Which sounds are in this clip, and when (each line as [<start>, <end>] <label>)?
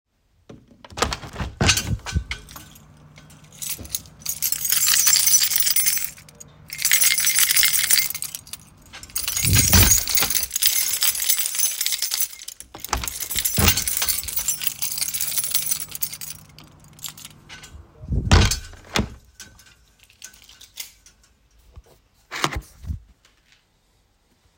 [0.50, 2.77] window
[3.23, 6.27] keys
[6.70, 8.66] keys
[9.01, 16.67] keys
[9.18, 10.51] window
[13.02, 14.24] window
[16.90, 17.54] keys
[18.00, 19.30] window